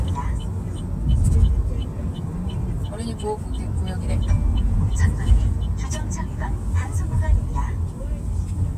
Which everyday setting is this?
car